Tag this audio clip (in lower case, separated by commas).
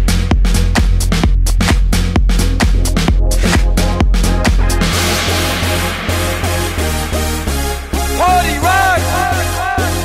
house music